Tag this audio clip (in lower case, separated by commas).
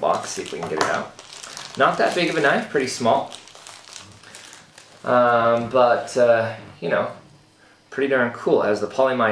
speech